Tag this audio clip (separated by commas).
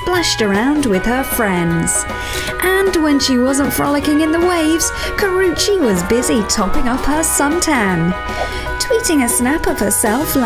Music, Speech